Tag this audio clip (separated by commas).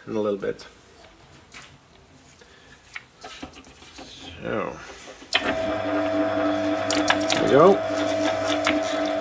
Speech, Tools